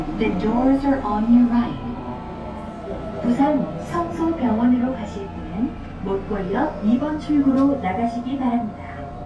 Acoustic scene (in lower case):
subway train